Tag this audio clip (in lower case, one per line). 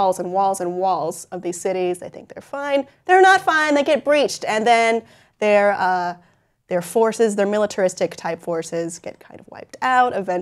speech